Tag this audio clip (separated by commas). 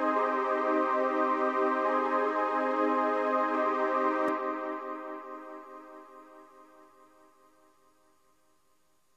Electronic music, Music